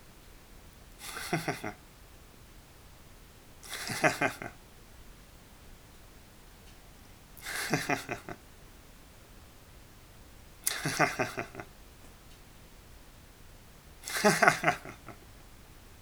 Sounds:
human voice, laughter

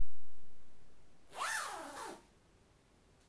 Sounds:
zipper (clothing), home sounds

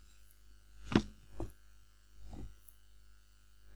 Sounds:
drawer open or close, domestic sounds

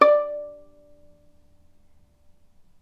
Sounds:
music, musical instrument, bowed string instrument

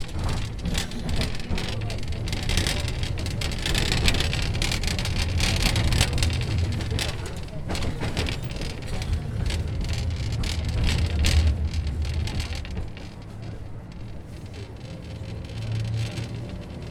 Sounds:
vehicle

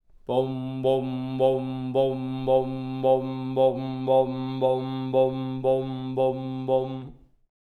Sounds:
human voice, singing

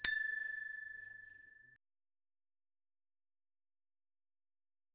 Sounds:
vehicle, alarm, bicycle bell, bicycle, bell

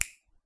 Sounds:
finger snapping, hands

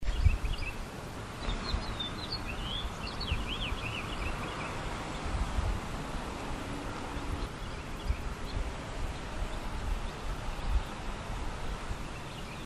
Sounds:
bird, animal, tweet, wild animals, bird vocalization

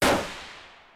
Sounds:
gunfire, explosion

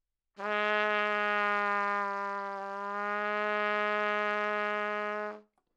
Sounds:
music, brass instrument, musical instrument, trumpet

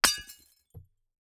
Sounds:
shatter, glass, hammer, tools

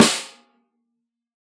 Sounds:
percussion, drum, music, snare drum, musical instrument

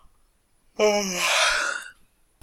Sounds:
human voice

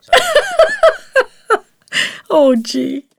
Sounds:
giggle, laughter, human voice

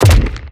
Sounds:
explosion, gunshot

